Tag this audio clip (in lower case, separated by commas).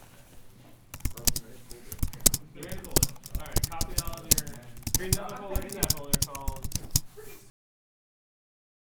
typing, domestic sounds